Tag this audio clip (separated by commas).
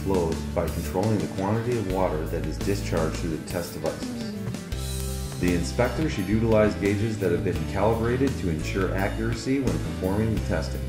Music, Speech